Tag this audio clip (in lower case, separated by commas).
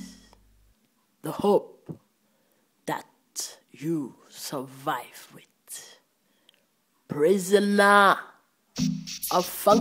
music, electronica, speech